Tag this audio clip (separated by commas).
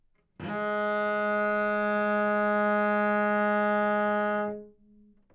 Bowed string instrument, Music, Musical instrument